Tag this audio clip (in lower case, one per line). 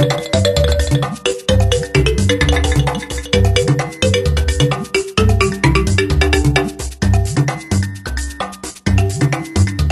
music